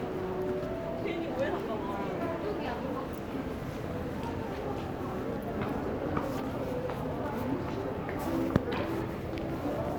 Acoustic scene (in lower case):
crowded indoor space